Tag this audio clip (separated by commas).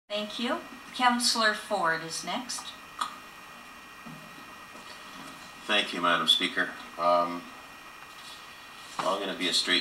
Speech